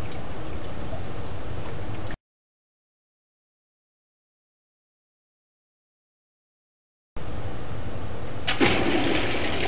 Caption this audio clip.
Wind blows briefly then a toilet flushes